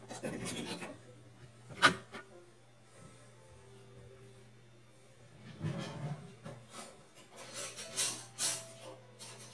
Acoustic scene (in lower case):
kitchen